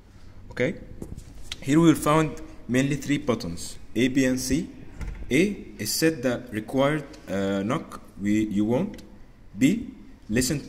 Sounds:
Speech

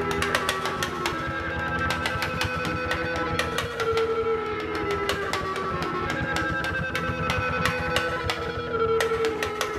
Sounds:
Music, Guitar

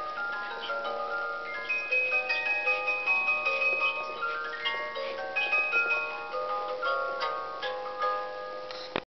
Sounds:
Music

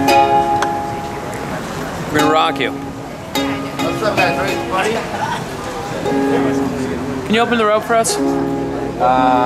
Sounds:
Speech, Music

